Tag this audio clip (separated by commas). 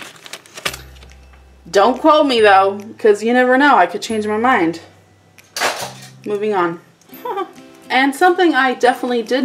Music, Speech, inside a small room